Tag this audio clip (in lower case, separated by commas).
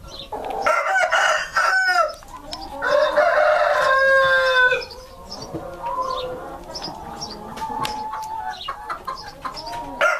crowing, fowl, cluck, chicken crowing, chicken